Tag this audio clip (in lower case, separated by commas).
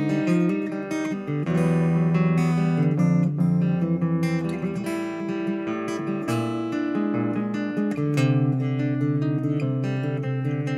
music, guitar, acoustic guitar, plucked string instrument, musical instrument, strum